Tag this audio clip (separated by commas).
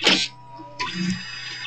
Printer, Mechanisms